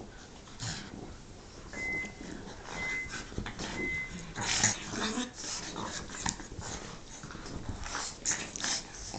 Some grunting and heavy breathing accompanied by some rustling, an alarm beeps in the background